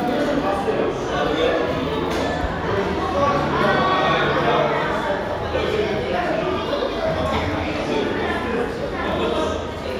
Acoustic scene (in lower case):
crowded indoor space